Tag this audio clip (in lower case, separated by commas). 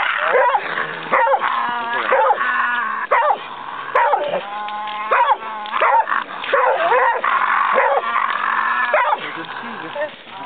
bow-wow, dog bow-wow